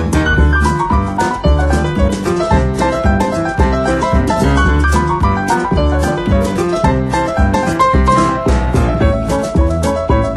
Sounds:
Music

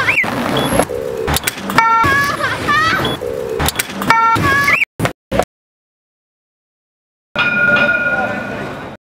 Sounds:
Sound effect

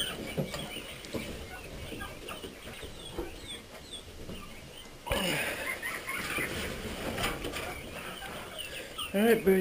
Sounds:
pheasant crowing

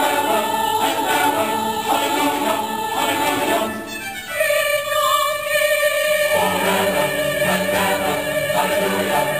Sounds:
Singing, Choir, Christmas music, Music

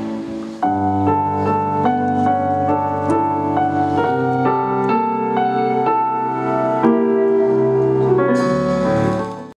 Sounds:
inside a large room or hall, Music

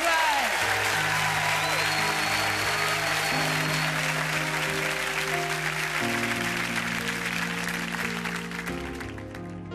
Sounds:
Music, Speech

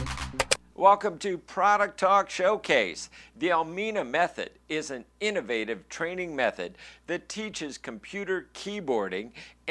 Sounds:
Music, Speech

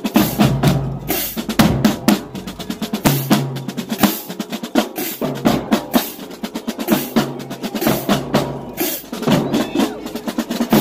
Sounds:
people marching

